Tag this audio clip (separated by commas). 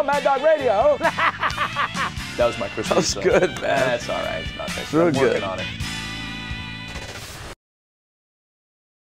Speech, Music